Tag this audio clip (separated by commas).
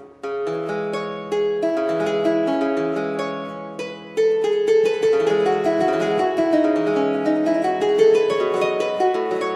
Harp, playing harp, Music